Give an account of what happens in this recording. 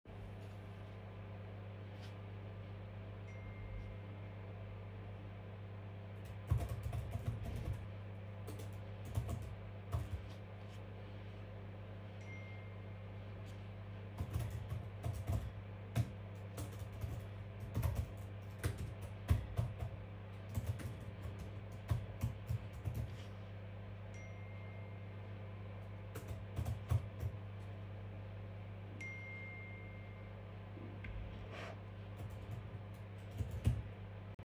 While microwave was woking i recieved notifiactions and typed the responses